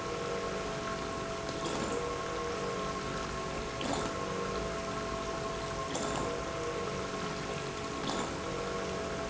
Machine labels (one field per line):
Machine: pump